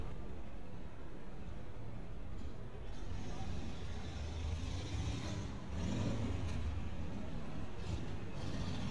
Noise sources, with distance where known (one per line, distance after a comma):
medium-sounding engine, near